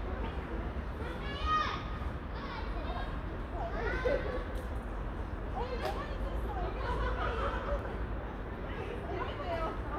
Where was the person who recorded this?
in a residential area